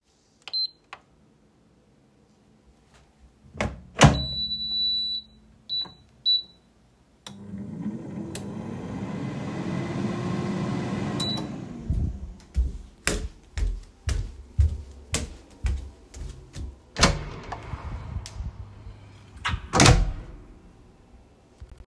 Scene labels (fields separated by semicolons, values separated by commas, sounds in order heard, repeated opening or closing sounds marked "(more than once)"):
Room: living room, kitchen; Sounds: footsteps, door (more than once)